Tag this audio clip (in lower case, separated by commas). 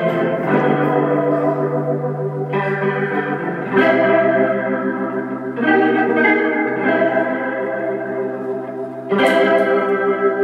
musical instrument, music, guitar, strum, plucked string instrument